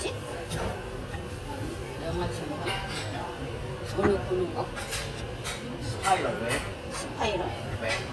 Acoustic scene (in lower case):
restaurant